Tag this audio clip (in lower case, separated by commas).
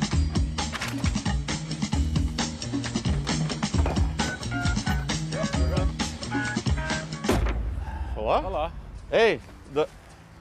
music, speech